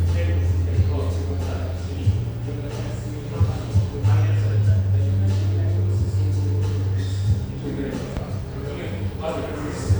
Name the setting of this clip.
cafe